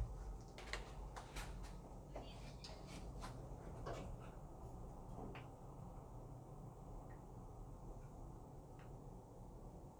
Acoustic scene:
elevator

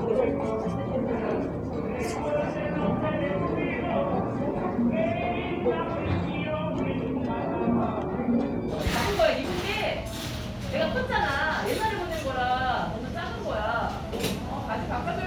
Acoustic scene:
cafe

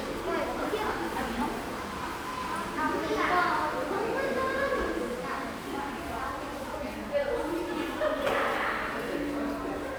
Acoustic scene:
crowded indoor space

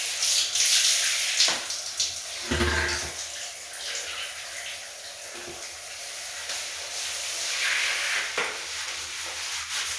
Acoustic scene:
restroom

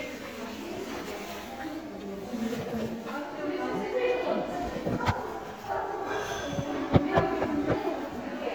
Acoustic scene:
crowded indoor space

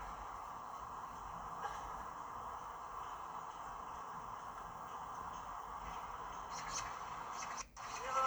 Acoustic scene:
park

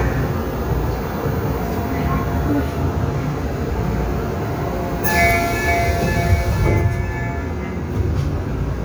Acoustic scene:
subway train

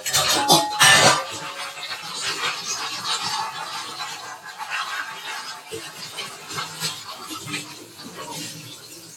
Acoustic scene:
kitchen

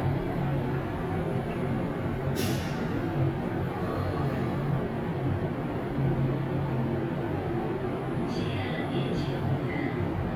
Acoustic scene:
elevator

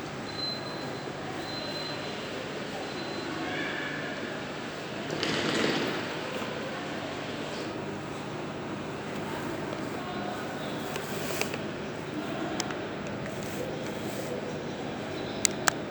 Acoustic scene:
subway station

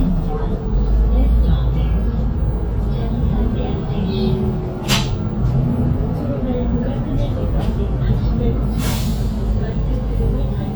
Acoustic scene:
bus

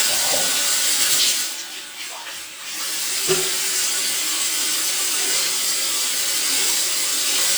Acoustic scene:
restroom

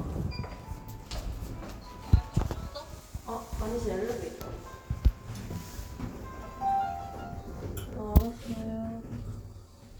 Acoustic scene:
elevator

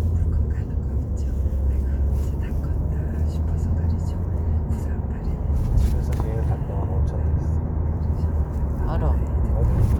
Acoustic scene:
car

